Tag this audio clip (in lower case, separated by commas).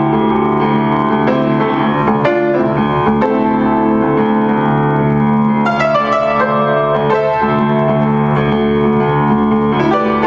music